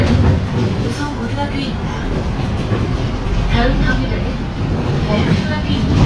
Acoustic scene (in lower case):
bus